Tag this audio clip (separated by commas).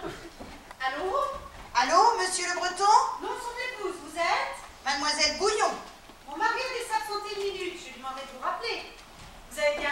Speech